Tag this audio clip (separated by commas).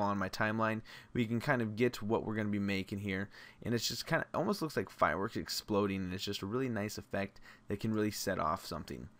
Speech